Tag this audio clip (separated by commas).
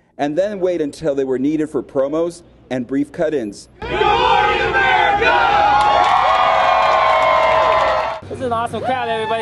Speech